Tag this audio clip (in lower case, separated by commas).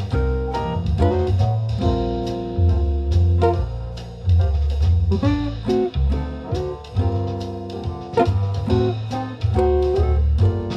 music, musical instrument, plucked string instrument, acoustic guitar, guitar